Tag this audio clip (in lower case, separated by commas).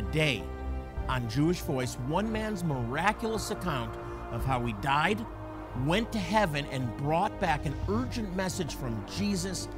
speech, music